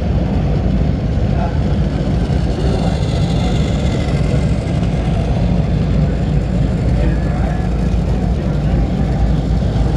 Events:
[0.00, 9.95] mechanisms
[1.08, 1.52] speech
[1.61, 1.74] tick
[2.51, 4.16] speech
[4.88, 5.55] speech
[6.04, 6.34] speech
[8.33, 9.04] speech
[9.05, 9.15] tick

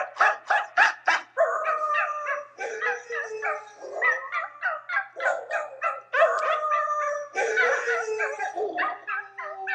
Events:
[0.00, 0.29] bark
[0.00, 9.74] background noise
[0.58, 4.05] bark
[4.11, 7.67] howl
[4.34, 4.53] bark
[4.66, 4.83] bark
[4.96, 5.17] bark
[5.30, 5.72] bark
[5.84, 6.49] bark
[6.67, 8.75] bark
[8.88, 9.74] howl
[8.92, 9.74] bark

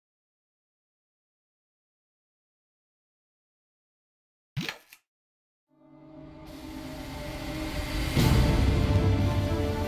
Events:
[4.46, 5.12] sound effect
[5.65, 9.85] music

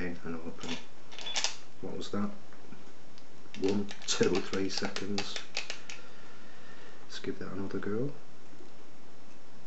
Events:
[0.00, 0.73] male speech
[0.00, 9.65] background noise
[0.57, 0.86] generic impact sounds
[1.06, 1.48] generic impact sounds
[1.79, 2.31] male speech
[3.07, 3.29] generic impact sounds
[3.50, 5.98] generic impact sounds
[3.54, 3.90] male speech
[4.13, 5.22] male speech
[5.76, 7.09] breathing
[7.17, 8.12] male speech
[9.20, 9.35] generic impact sounds

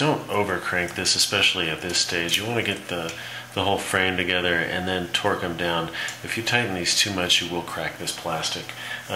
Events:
[0.01, 9.15] male speech
[0.03, 9.15] mechanisms
[0.83, 0.97] tick
[1.76, 1.91] tick
[2.27, 2.35] tick
[2.59, 2.67] tick
[3.03, 3.12] tick
[6.02, 6.11] tick

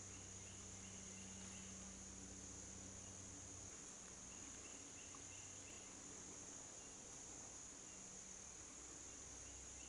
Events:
[0.00, 9.85] insect
[0.00, 9.85] wind
[0.03, 1.65] bird vocalization
[2.93, 3.12] bird vocalization
[4.20, 5.94] bird vocalization
[6.72, 6.92] bird vocalization
[7.77, 7.96] bird vocalization
[9.00, 9.19] bird vocalization
[9.40, 9.56] bird vocalization
[9.72, 9.85] bird vocalization

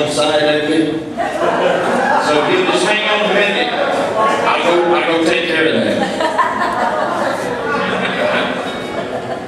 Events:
[0.00, 1.06] man speaking
[0.00, 9.45] speech babble
[1.11, 2.03] laughter
[2.13, 3.87] man speaking
[4.09, 6.20] man speaking
[5.95, 7.20] laughter
[7.44, 7.89] woman speaking
[7.67, 8.40] music
[8.62, 9.05] music
[8.88, 9.45] laughter

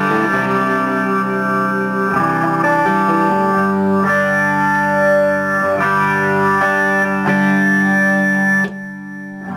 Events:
[0.00, 9.55] music

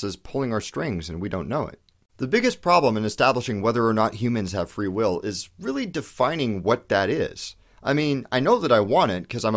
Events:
[0.00, 1.76] male speech
[0.00, 9.55] background noise
[1.79, 1.98] human sounds
[2.17, 7.53] male speech
[7.54, 7.84] breathing
[7.80, 9.55] male speech

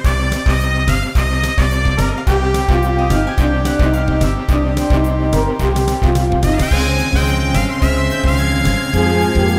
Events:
[0.00, 9.55] music

